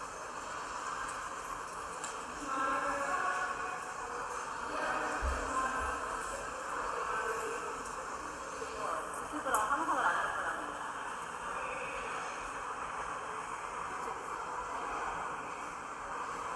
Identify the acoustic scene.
subway station